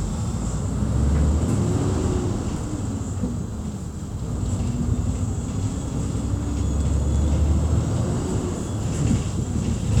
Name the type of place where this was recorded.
bus